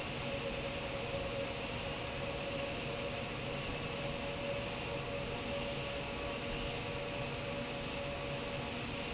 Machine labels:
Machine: fan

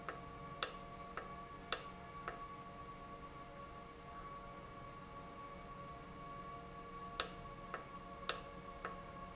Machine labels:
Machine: valve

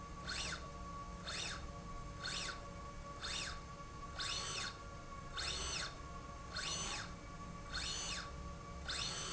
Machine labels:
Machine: slide rail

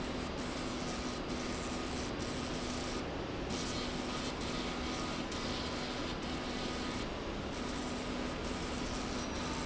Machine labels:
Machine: slide rail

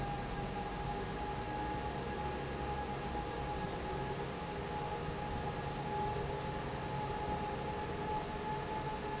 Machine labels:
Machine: fan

